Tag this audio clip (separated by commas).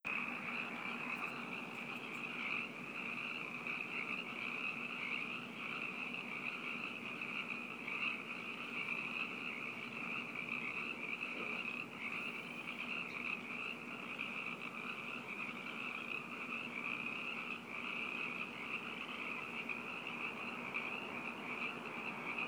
Wild animals, Frog, Animal